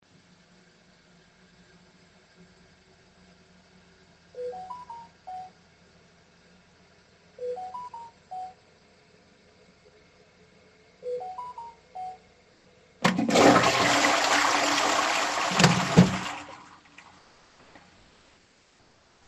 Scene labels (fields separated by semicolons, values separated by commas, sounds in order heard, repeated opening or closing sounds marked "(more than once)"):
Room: bathroom; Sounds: phone ringing, toilet flushing